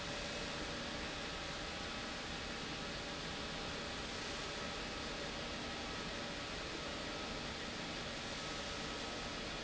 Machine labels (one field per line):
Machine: pump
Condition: abnormal